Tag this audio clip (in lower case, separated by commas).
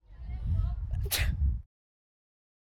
sneeze, wind, human group actions, chatter, respiratory sounds